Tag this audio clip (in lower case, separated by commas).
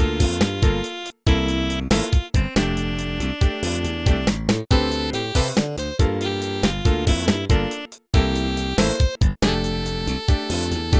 background music, music